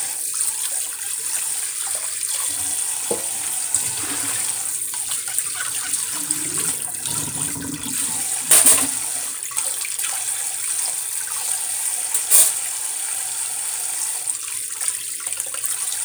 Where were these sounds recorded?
in a kitchen